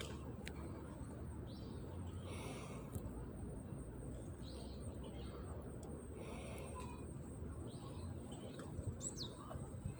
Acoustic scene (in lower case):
residential area